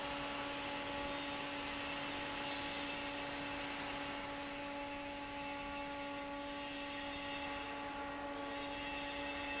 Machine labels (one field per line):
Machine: fan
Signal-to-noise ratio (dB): 0 dB